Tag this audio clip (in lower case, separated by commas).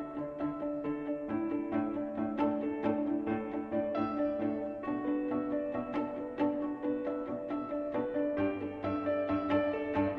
music